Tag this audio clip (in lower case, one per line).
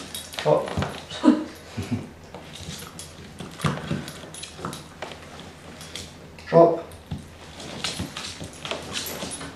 speech